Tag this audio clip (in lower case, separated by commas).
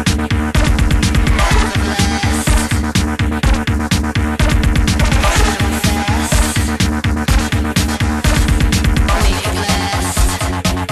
house music, dance music, electronica